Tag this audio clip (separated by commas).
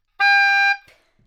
woodwind instrument, Musical instrument, Music